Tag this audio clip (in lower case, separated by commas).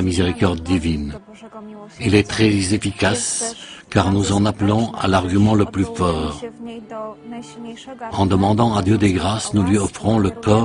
music, speech